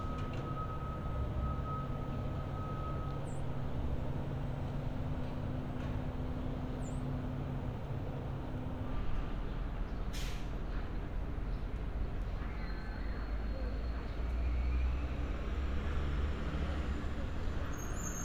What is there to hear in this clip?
engine of unclear size, reverse beeper